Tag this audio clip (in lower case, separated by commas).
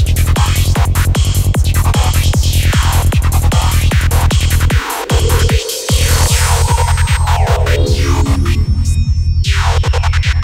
electronic music, music, trance music